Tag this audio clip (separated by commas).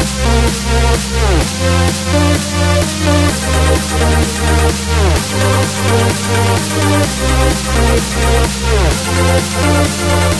Music